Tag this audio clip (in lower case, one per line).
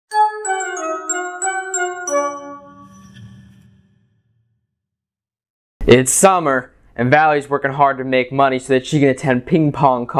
glockenspiel
music
speech